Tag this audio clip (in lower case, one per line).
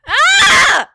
human voice
yell
screaming
shout